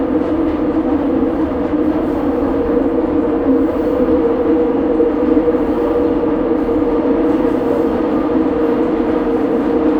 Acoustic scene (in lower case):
subway train